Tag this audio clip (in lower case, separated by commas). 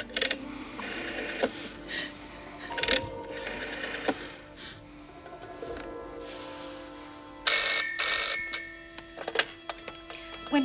music, inside a large room or hall